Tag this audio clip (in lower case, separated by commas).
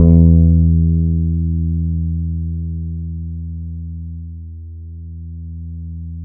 guitar, music, bass guitar, plucked string instrument, musical instrument